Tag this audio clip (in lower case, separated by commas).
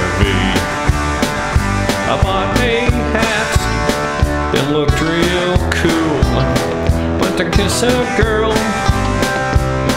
exciting music, music